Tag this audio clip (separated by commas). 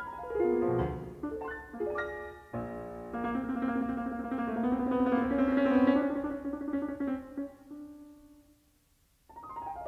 Piano, Keyboard (musical)